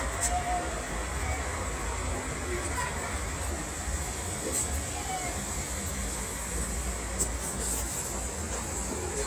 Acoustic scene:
street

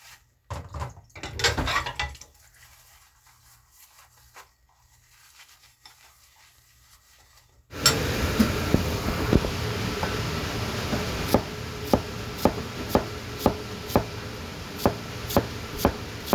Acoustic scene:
kitchen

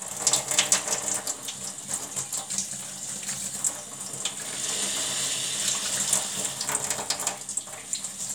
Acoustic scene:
kitchen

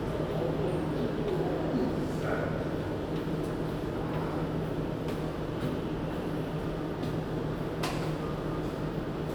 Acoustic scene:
subway station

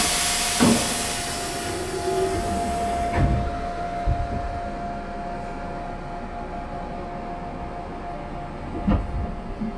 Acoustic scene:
subway train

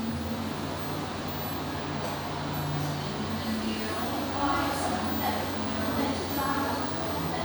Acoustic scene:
cafe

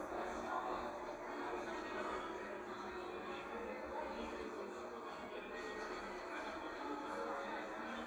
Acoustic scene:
cafe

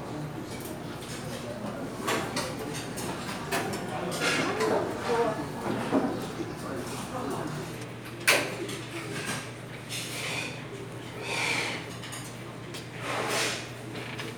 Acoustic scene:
restaurant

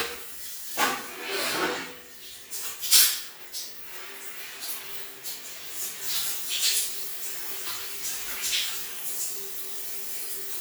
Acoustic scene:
restroom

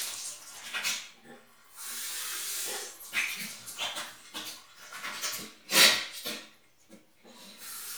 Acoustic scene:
restroom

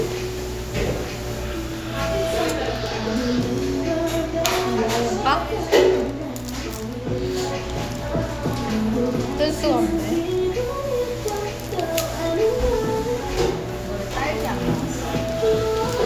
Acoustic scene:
cafe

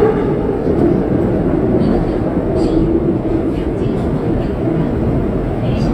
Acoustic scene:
subway train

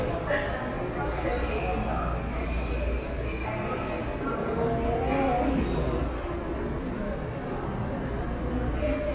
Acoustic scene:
subway station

